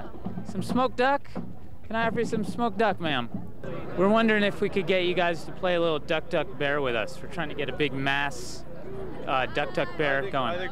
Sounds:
speech

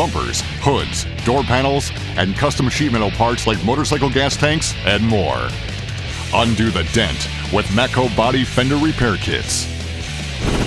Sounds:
speech
music

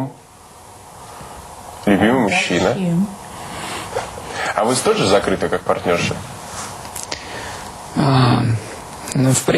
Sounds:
speech
inside a large room or hall

